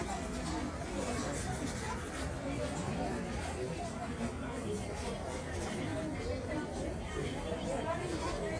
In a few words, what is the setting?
crowded indoor space